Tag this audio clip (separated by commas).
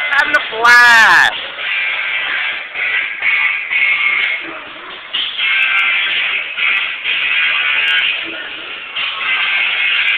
Speech, Music